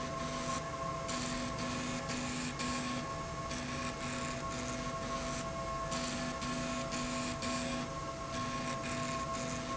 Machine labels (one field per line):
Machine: slide rail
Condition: abnormal